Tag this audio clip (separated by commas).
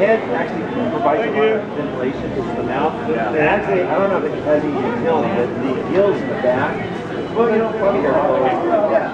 Speech